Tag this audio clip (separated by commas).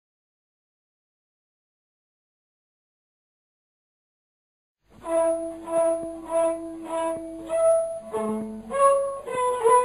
Music